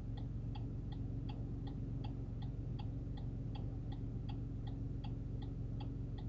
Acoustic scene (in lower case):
car